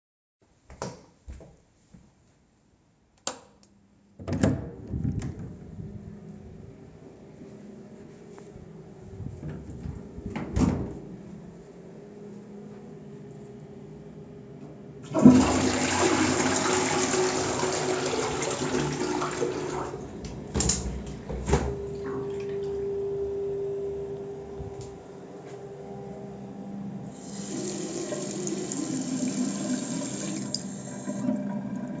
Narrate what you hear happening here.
I opened the toilet door, entered, turned on the light and ventilation, closed the door, flushed the toilet, opened the window and turned on the tap.